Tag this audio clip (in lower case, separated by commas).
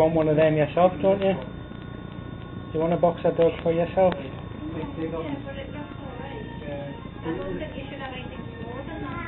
speech, music